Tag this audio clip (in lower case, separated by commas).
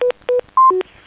alarm, telephone